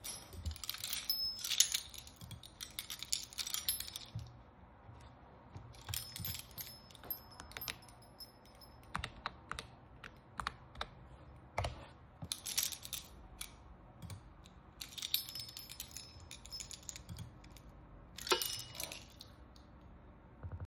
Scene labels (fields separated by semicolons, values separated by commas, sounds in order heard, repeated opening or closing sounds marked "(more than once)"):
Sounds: keys, keyboard typing